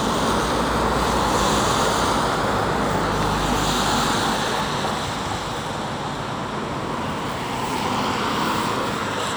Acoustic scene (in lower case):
street